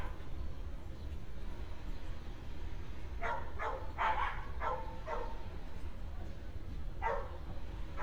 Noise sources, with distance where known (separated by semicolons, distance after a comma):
dog barking or whining